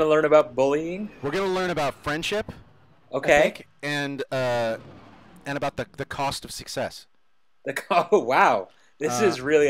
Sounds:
speech

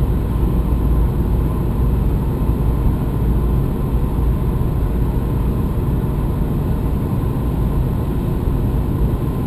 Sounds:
buzz

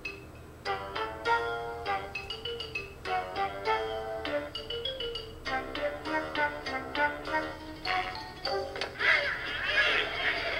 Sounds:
music

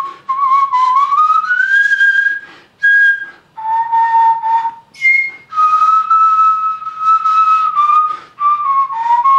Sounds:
musical instrument, music, flute

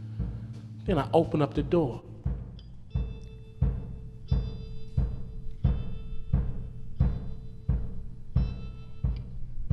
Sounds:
timpani, music, speech

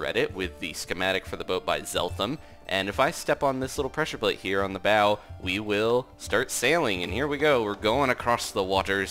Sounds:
music, speech

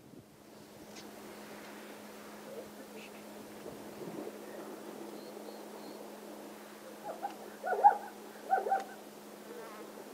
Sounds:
animal, speech

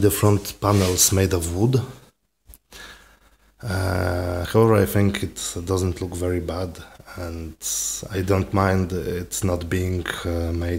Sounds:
speech

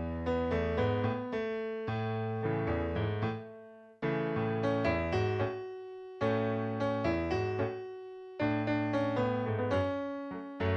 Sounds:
musical instrument, music

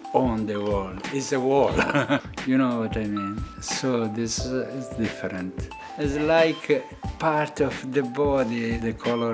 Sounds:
music, speech

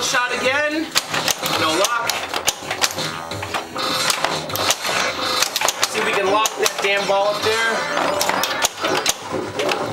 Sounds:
speech, inside a small room, music

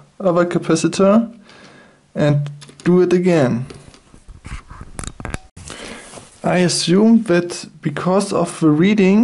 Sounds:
inside a small room, speech

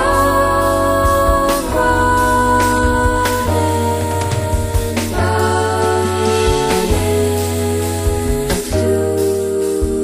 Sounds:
jazz, music

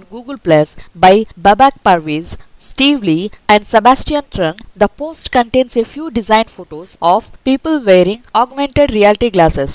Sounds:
speech

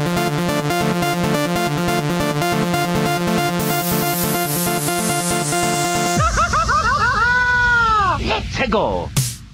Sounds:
music, electronic music, speech, dubstep

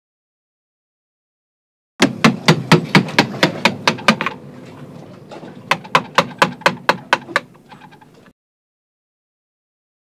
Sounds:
hammering nails

